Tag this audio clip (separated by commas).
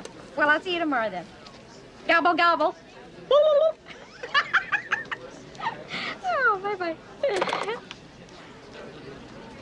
Speech